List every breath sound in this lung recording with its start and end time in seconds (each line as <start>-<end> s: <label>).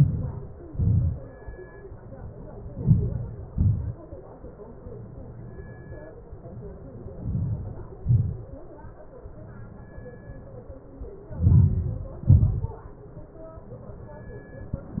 0.00-0.45 s: inhalation
0.00-0.45 s: crackles
0.78-1.23 s: exhalation
0.78-1.23 s: crackles
2.90-3.35 s: inhalation
2.90-3.35 s: crackles
3.57-4.02 s: exhalation
3.57-4.02 s: crackles
7.31-7.76 s: inhalation
7.31-7.76 s: crackles
8.04-8.48 s: exhalation
8.04-8.48 s: crackles
11.50-11.95 s: inhalation
11.50-11.95 s: crackles
12.30-12.75 s: exhalation
12.30-12.75 s: crackles